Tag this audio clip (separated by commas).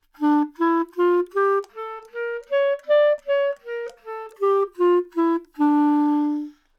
Music, Wind instrument, Musical instrument